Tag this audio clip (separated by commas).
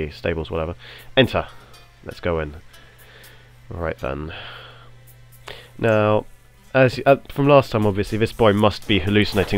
Music, Speech